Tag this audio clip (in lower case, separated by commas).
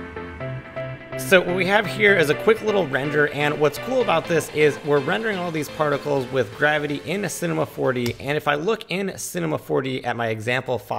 speech, music